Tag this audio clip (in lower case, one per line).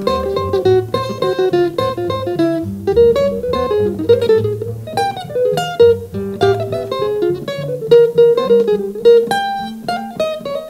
plucked string instrument
music
guitar
musical instrument